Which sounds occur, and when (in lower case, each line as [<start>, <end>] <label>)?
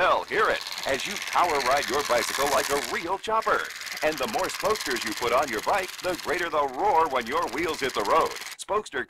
[0.00, 0.60] man speaking
[0.00, 8.65] bicycle
[0.84, 1.19] man speaking
[1.34, 3.70] man speaking
[3.99, 5.89] man speaking
[6.05, 8.41] man speaking
[8.66, 9.05] man speaking